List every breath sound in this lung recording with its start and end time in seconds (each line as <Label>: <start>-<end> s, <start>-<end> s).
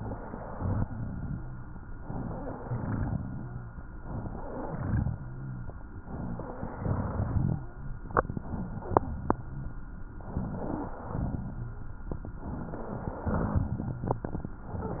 Inhalation: 0.00-0.80 s, 1.97-2.62 s, 4.00-4.69 s, 6.02-6.75 s, 10.30-10.98 s, 12.43-13.26 s
Exhalation: 0.85-1.71 s, 2.71-3.76 s, 4.71-5.69 s, 6.75-7.61 s, 11.04-11.88 s, 13.34-14.38 s
Rhonchi: 0.85-1.71 s, 2.01-2.56 s, 2.71-3.76 s, 4.71-5.69 s, 6.05-6.53 s, 6.75-7.61 s, 10.30-10.98 s, 11.04-11.88 s, 13.34-14.38 s